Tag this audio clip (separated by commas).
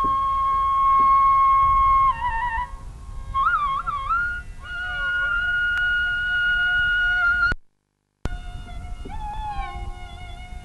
Flute, Music, playing flute, Classical music